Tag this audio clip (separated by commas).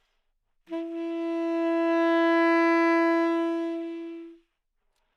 woodwind instrument, Music, Musical instrument